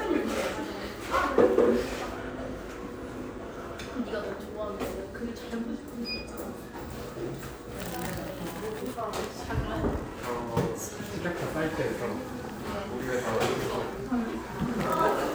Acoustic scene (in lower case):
cafe